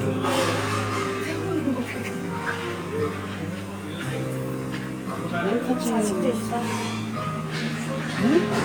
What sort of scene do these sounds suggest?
cafe